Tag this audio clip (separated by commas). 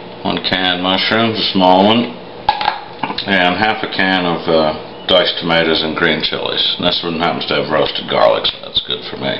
Speech